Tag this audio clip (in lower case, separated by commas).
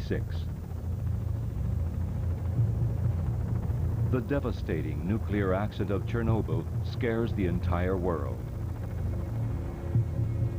speech